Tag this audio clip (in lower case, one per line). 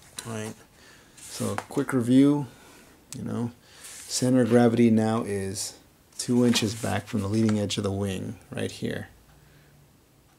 speech